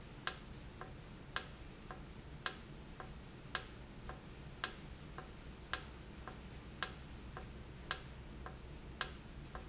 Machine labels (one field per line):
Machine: valve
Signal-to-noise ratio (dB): 6 dB